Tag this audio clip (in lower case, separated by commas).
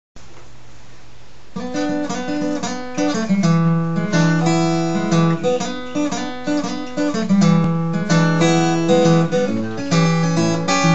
music, guitar, acoustic guitar, plucked string instrument, musical instrument